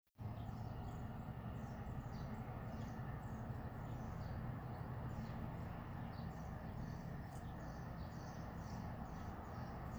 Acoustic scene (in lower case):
residential area